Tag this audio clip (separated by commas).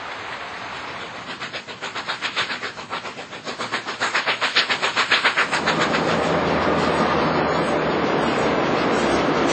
outside, rural or natural, Rail transport, Vehicle, Train